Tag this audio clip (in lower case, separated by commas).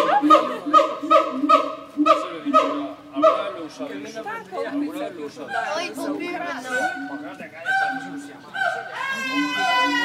gibbon howling